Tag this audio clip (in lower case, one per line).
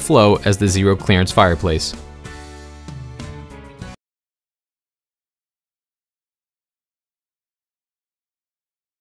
speech
music